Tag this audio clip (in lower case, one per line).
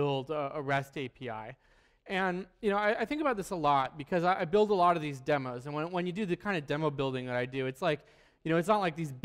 speech